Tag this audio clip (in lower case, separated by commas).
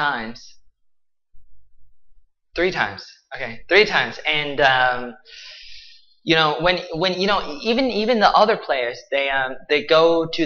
speech, inside a small room